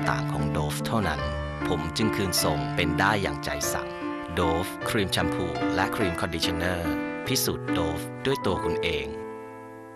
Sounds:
Speech, Music

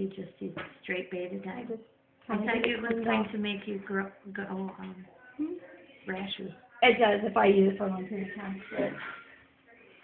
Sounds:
Speech

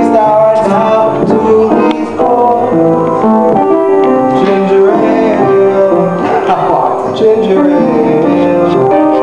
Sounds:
Music, Male singing

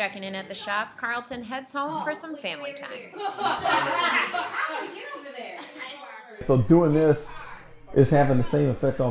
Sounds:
Laughter, Speech

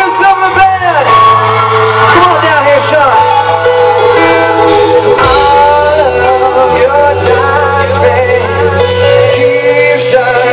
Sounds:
Whoop, Speech, Singing, Music

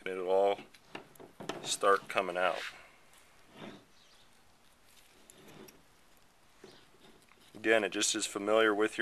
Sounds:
inside a small room, Speech

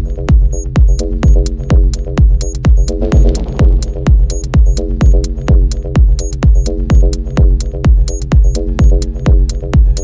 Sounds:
Music

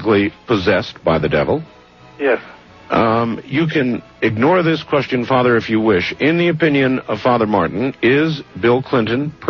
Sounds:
Music, Speech

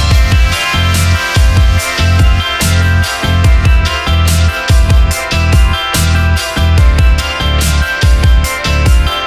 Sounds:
Music

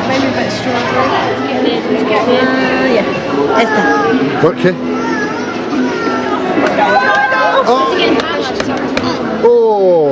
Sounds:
Speech

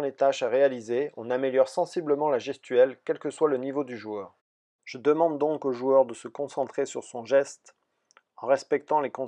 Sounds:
Speech

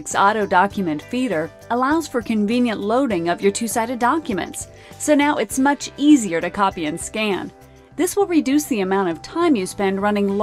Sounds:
Music, Speech

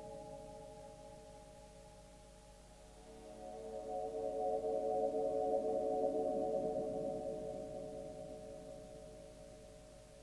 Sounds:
Music

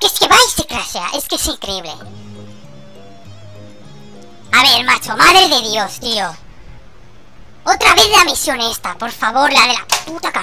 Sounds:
Speech, Music

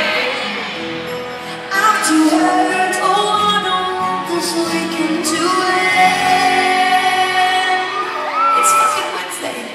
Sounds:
Speech, Female singing, Music

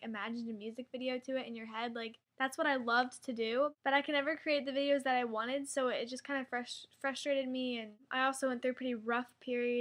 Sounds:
Speech

